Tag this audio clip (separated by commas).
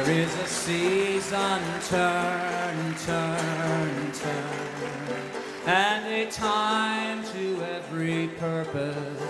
Music